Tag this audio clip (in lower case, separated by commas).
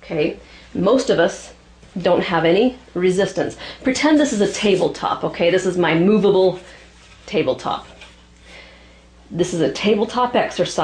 speech